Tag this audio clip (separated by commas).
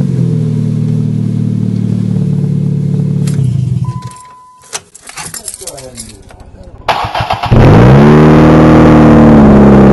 Speech, Vehicle